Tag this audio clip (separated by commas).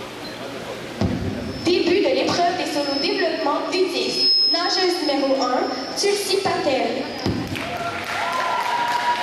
Speech